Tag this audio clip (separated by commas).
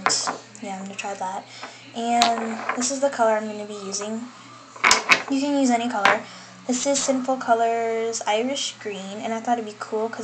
Speech